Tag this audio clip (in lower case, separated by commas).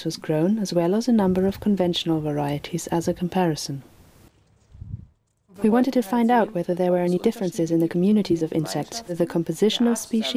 speech